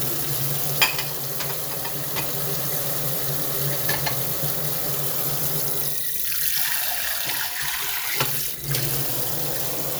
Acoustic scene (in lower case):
kitchen